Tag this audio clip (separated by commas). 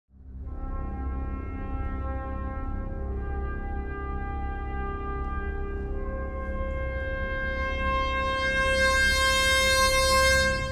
Brass instrument